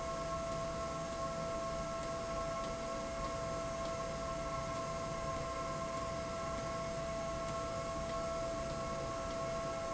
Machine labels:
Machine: slide rail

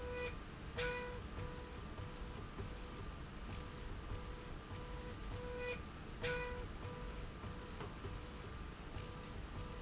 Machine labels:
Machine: slide rail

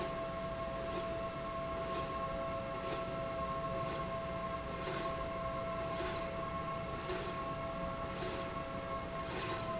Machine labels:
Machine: slide rail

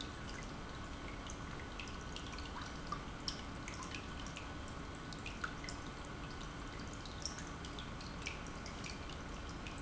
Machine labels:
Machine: pump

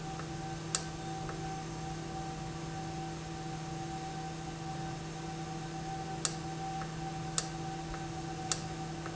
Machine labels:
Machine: valve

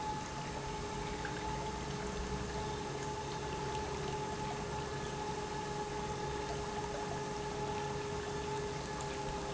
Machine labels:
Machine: pump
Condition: normal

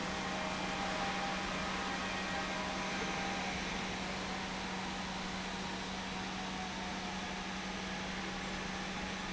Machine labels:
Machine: pump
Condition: normal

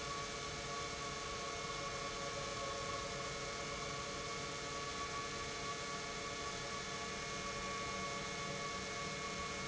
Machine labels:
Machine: pump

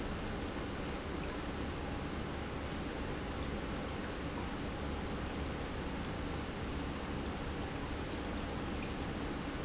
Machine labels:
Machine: pump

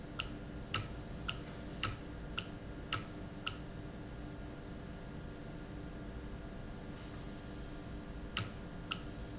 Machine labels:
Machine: valve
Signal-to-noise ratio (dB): 0 dB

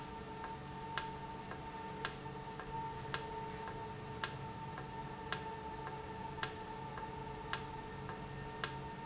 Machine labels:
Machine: valve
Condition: normal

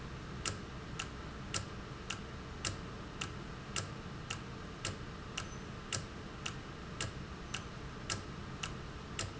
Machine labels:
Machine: valve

